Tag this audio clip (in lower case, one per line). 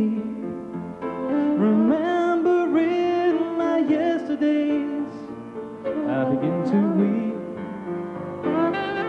music